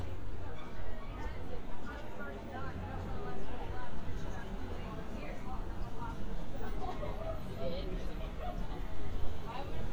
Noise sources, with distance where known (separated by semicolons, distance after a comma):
person or small group talking